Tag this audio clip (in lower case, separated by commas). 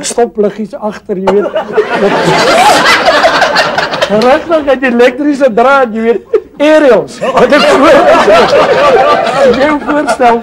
laughter, speech